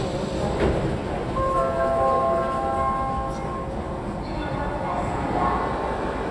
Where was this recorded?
in a subway station